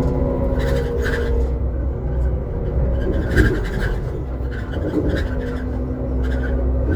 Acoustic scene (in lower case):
bus